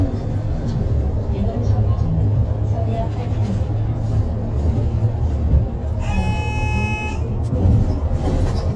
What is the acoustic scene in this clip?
bus